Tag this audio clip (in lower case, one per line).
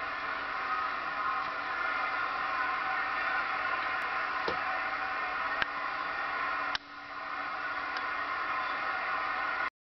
chink